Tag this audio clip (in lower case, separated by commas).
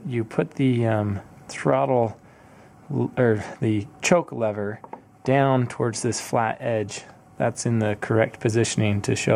speech